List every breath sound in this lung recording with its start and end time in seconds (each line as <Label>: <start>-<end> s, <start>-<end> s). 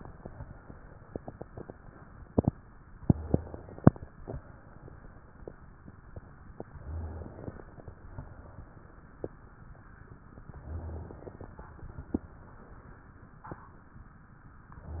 Inhalation: 3.06-4.06 s, 6.75-7.93 s, 10.43-11.61 s, 14.82-15.00 s